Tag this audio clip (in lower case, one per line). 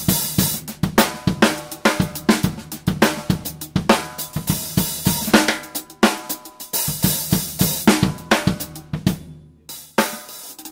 cymbal
hi-hat